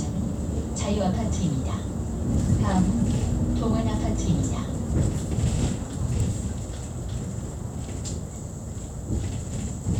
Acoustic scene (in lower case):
bus